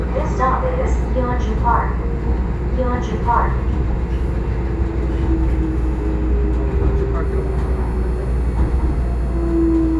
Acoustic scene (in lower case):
subway train